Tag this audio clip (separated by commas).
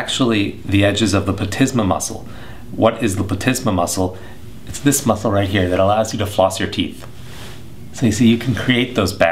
Speech